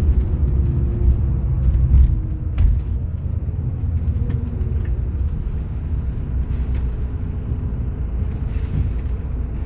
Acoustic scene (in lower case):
car